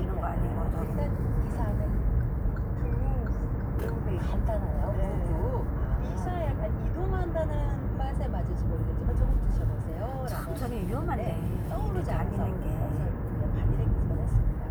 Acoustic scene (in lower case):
car